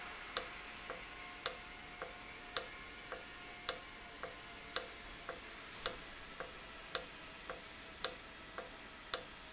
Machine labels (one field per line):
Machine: valve